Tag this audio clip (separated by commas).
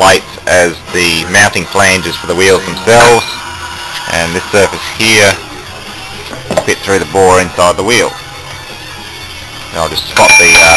Music, Speech